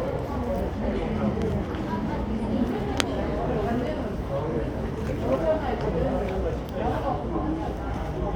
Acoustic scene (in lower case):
subway station